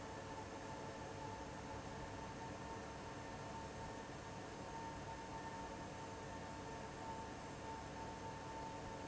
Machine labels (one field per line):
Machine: fan